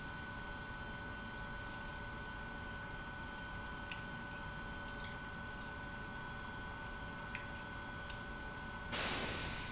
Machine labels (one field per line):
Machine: pump